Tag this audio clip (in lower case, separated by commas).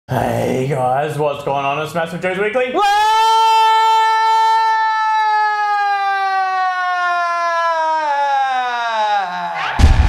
inside a small room, music, speech